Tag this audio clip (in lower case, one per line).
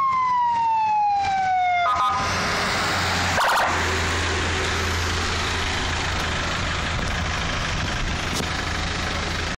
car
police car (siren)
vehicle